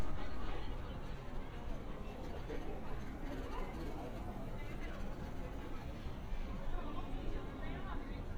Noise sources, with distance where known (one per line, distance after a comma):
engine of unclear size
person or small group talking, near